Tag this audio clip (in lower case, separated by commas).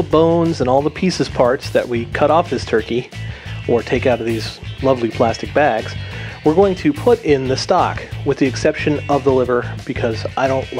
speech, music